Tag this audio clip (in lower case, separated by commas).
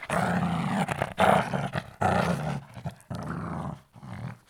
pets, growling, animal, dog